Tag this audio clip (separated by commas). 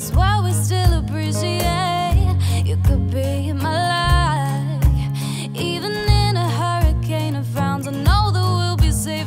Music